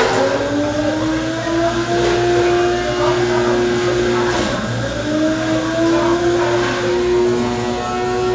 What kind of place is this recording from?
cafe